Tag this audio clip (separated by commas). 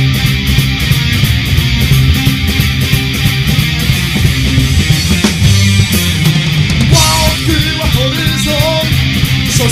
Music, Vehicle